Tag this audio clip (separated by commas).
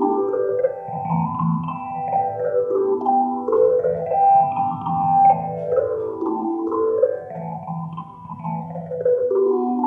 Music, Musical instrument, Plucked string instrument